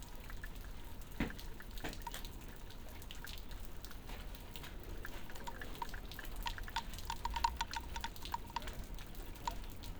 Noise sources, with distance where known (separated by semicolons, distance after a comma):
background noise